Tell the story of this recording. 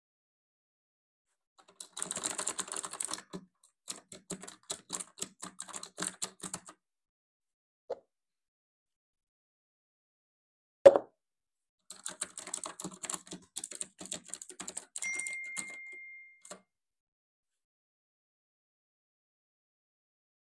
I was typing with my keyboard, took a sip from my plastic cup, then continued typing and heard phone notification.